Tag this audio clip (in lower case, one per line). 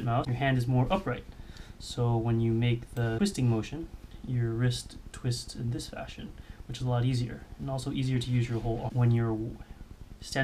speech